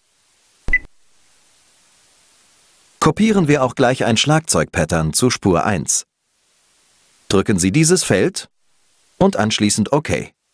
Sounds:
speech

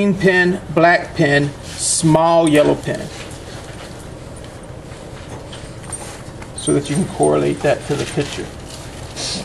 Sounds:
speech

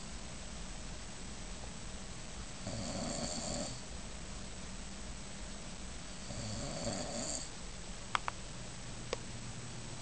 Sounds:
snoring

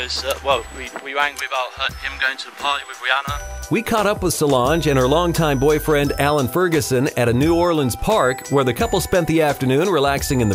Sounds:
music
speech

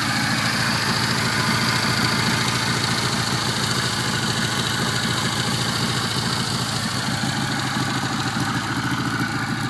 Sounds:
outside, rural or natural
motorcycle
vehicle

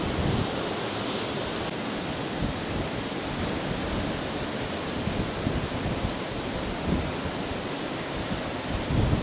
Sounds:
outside, urban or man-made
pink noise

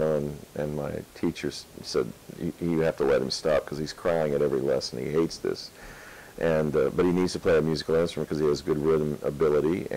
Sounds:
speech

